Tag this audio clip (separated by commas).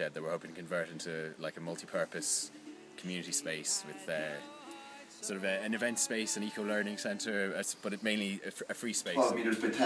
Music, Speech